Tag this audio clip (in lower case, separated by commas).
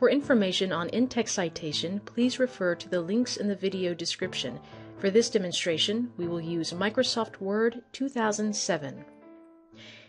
music, speech